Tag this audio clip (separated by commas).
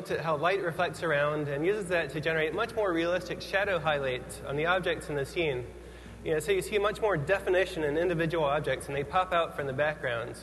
Speech